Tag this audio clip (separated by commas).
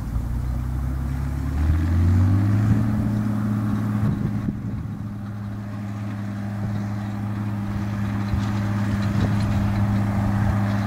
Vehicle, outside, rural or natural